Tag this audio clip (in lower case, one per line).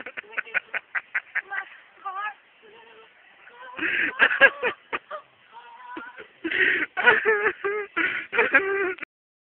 female singing